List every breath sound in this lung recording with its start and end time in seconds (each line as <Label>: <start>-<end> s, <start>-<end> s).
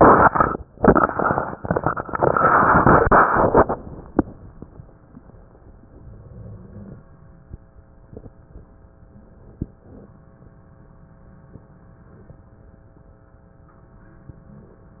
Inhalation: 5.82-7.01 s, 9.00-10.18 s